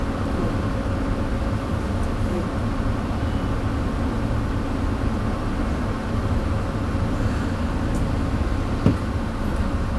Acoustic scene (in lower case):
bus